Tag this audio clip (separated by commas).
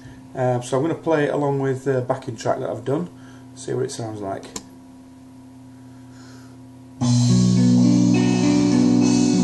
Plucked string instrument, inside a small room, Guitar, Musical instrument, Music, Speech